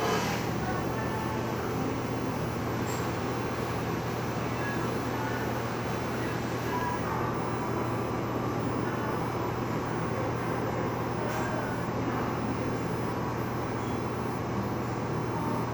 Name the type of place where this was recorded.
cafe